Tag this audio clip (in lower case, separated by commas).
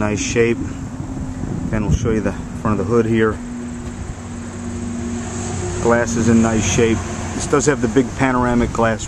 vehicle, outside, rural or natural, speech, car